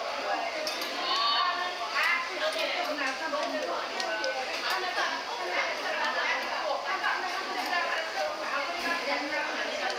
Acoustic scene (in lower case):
restaurant